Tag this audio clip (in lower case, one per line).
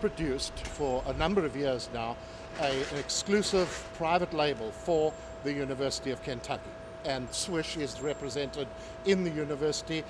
speech